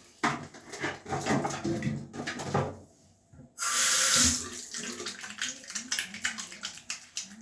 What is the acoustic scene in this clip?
restroom